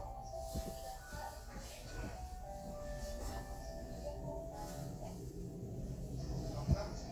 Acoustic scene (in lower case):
elevator